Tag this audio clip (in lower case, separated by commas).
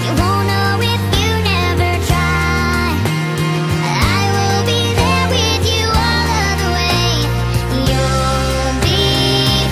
music